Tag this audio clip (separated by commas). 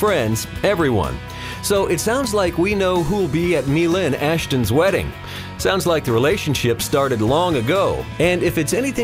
Speech, Music